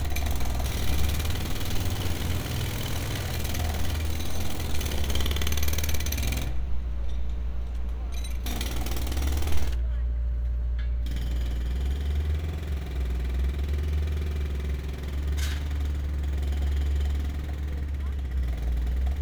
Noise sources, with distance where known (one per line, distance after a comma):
jackhammer